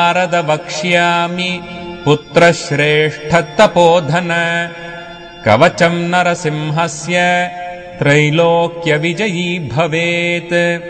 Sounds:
Mantra

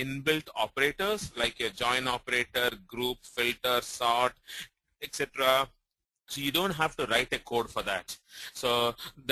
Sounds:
Speech

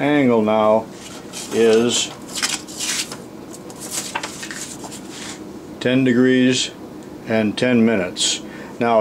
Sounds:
Speech, inside a small room

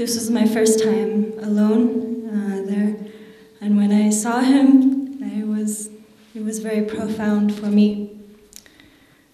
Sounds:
monologue, Female speech, Speech

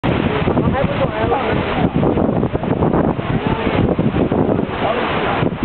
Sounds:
Speech

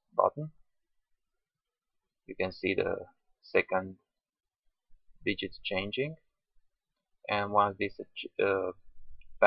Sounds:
Speech

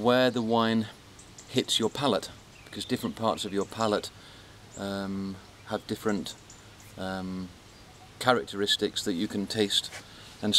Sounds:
Speech

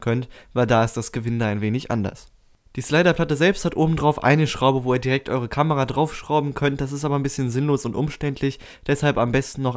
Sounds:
Speech

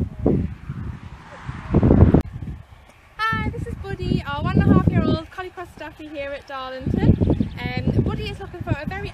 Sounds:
Speech

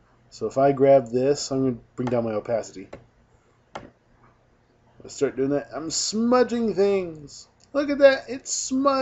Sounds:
Speech

